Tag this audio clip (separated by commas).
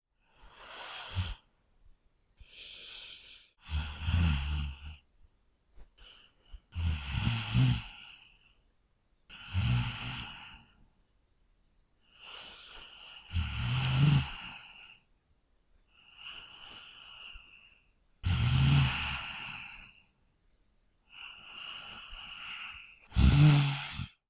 Respiratory sounds, Breathing